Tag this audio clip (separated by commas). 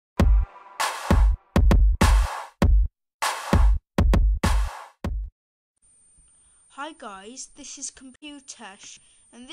Speech, Music